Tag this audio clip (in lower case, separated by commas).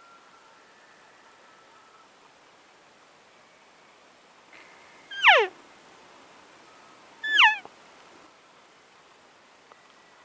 elk bugling